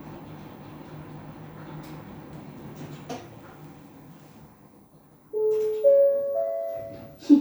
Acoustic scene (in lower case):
elevator